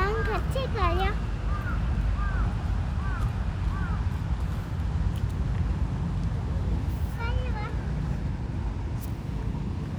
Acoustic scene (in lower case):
residential area